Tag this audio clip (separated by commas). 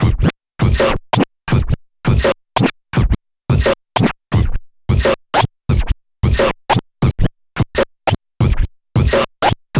Musical instrument, Music, Scratching (performance technique)